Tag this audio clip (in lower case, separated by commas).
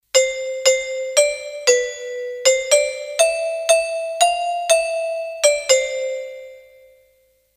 alarm, door, home sounds, doorbell